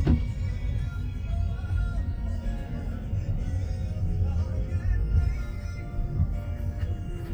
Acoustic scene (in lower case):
car